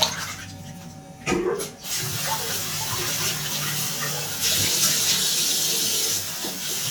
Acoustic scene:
restroom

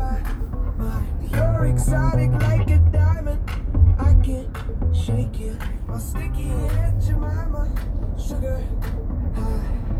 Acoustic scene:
car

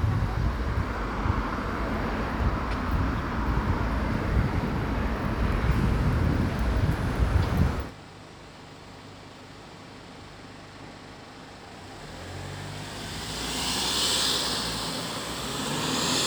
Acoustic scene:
street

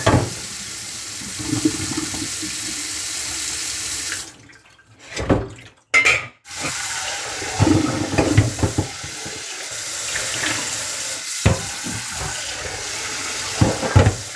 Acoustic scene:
kitchen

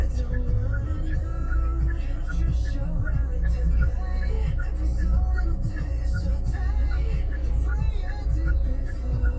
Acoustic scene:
car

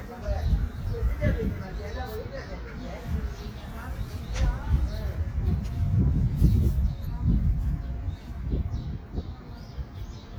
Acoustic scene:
park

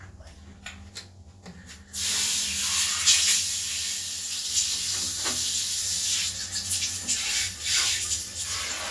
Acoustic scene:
restroom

